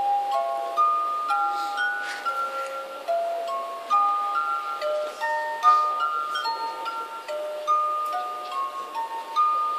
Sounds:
Glass, Music

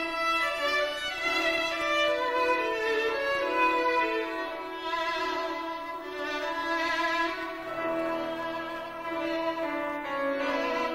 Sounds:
Violin, Musical instrument, Music

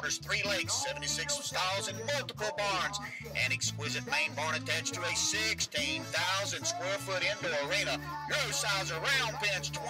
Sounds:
Speech

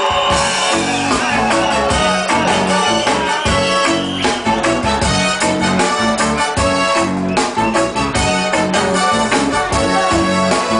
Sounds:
Musical instrument, Drum, Music

